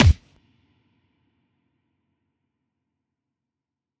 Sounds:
thump

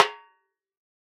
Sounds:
percussion, music, snare drum, drum, musical instrument

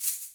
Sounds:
percussion, musical instrument, rattle (instrument), music

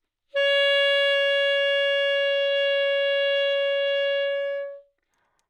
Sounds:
musical instrument, woodwind instrument, music

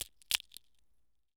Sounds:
crushing, crack

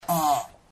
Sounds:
fart

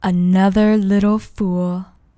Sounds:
human voice, speech, female speech

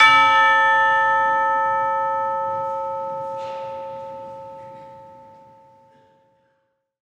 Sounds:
bell, music, musical instrument, church bell, percussion

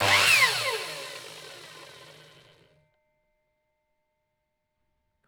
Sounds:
tools, sawing

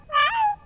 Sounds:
bird call, animal, wild animals, meow, bird, cat, pets

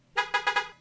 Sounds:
vehicle, alarm, car, motor vehicle (road), car horn

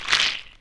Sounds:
rattle

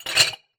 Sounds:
chink, glass

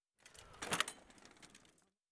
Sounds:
vehicle, bicycle

